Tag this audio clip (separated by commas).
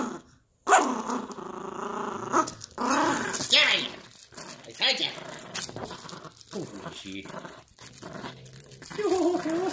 dog growling